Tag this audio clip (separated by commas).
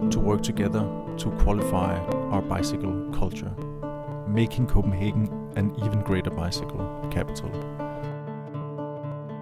Speech, Music